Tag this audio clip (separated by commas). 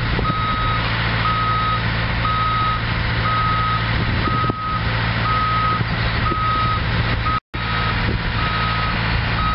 Vehicle